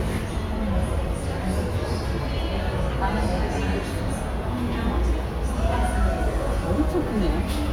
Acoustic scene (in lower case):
crowded indoor space